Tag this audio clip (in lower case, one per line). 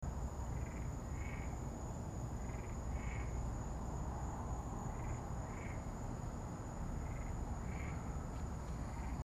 animal
wild animals
insect
frog